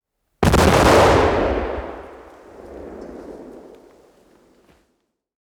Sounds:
explosion

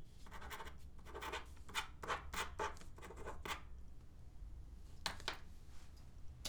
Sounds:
writing, domestic sounds

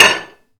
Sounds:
dishes, pots and pans, domestic sounds

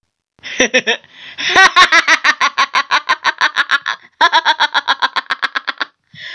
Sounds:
laughter, human voice

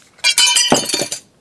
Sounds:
shatter, glass

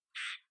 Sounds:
bird, animal, wild animals

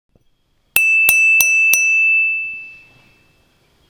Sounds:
glass, bell

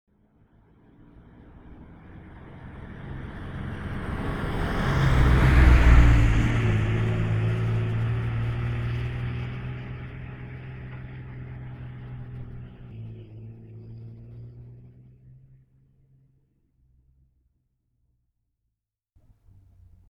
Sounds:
truck, vehicle, motor vehicle (road)

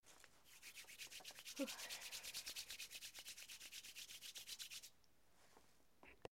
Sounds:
hands

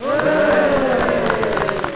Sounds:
human group actions, cheering

